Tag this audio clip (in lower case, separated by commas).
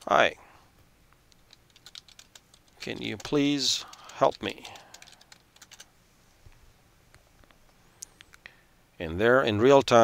speech